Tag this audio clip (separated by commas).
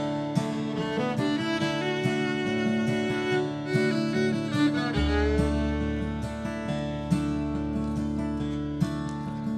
Bluegrass, Music